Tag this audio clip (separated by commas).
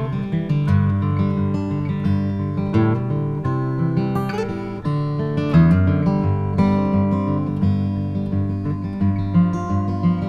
Music, Acoustic guitar